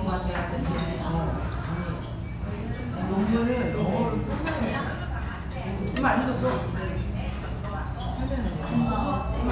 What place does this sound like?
restaurant